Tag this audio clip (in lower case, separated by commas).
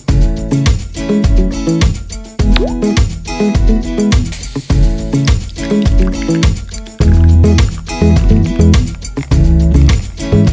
water